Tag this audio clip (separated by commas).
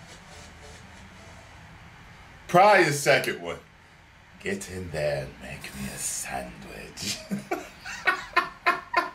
Speech